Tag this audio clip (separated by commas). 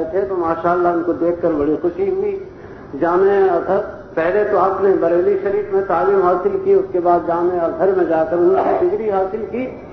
Male speech, Narration, Speech